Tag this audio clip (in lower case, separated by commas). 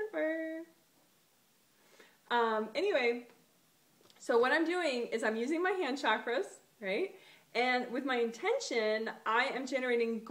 speech